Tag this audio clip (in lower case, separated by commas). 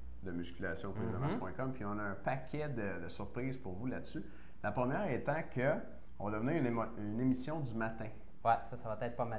speech